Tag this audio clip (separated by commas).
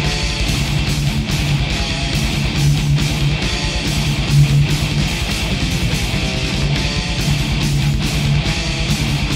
Musical instrument, Guitar, Plucked string instrument, Music, Electric guitar